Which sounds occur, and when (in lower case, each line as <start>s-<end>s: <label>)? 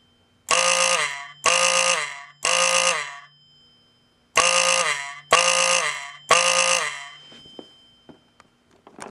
0.0s-8.9s: alarm
0.0s-9.1s: mechanisms
7.3s-7.7s: generic impact sounds
8.1s-8.2s: generic impact sounds
8.2s-8.4s: generic impact sounds
8.7s-9.1s: generic impact sounds